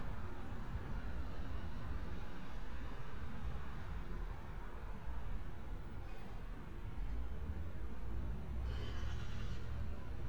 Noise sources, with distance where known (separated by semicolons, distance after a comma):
background noise